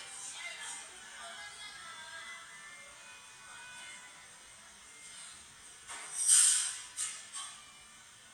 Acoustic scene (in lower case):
cafe